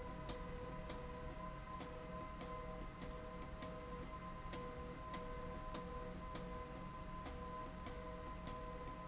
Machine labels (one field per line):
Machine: slide rail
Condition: abnormal